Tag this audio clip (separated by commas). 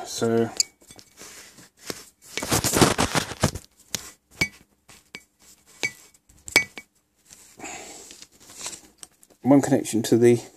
Speech, inside a small room